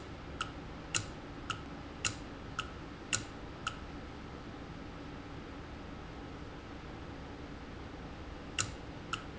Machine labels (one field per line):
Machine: valve